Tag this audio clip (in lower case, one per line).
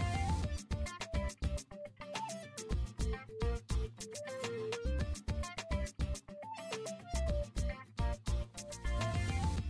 music